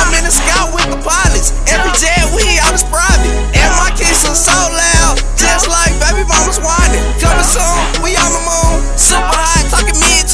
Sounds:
music
exciting music

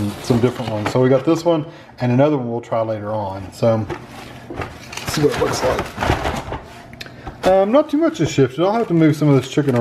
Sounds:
speech

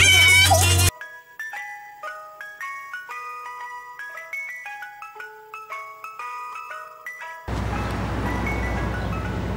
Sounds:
ice cream van

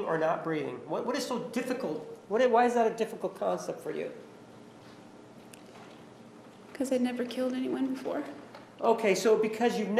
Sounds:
speech

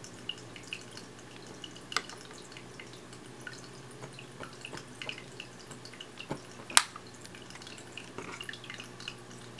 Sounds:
water

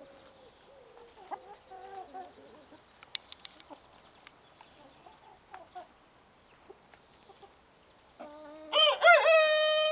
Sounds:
chicken
bird
livestock

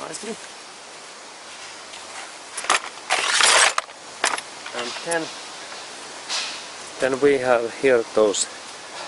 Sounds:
speech

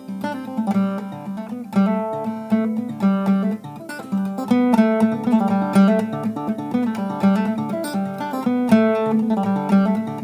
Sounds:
music
musical instrument
plucked string instrument
acoustic guitar
guitar

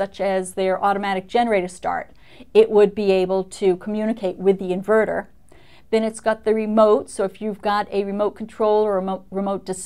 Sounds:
speech

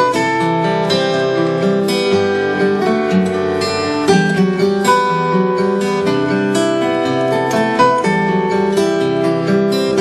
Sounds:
music

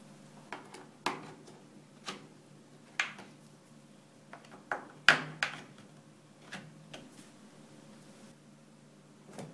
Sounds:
inside a small room

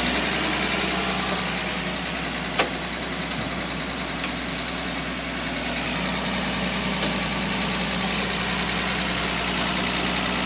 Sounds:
medium engine (mid frequency)
idling
engine

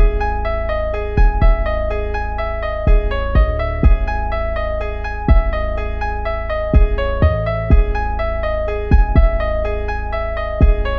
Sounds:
music

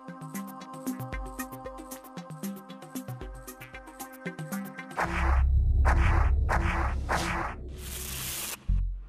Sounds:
music
speech

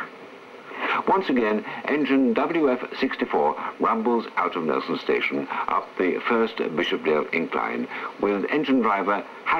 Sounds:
radio

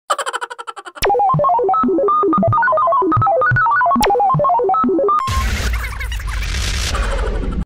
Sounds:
music

